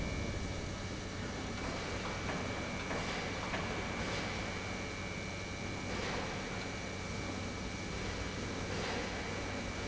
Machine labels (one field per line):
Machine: pump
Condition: normal